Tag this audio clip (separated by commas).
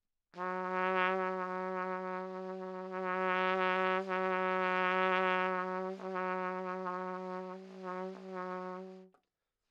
Brass instrument, Music, Trumpet, Musical instrument